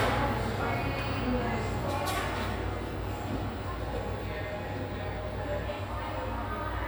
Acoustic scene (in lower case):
cafe